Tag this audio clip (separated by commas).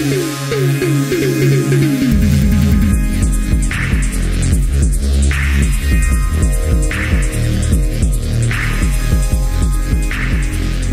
Throbbing